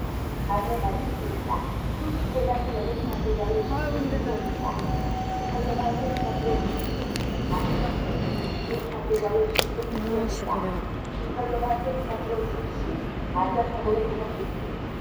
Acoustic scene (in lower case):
subway station